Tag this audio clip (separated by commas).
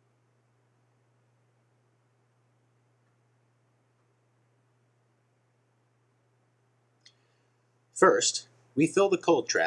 Speech